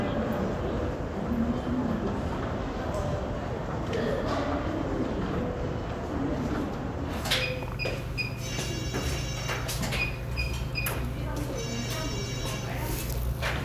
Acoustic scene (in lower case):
crowded indoor space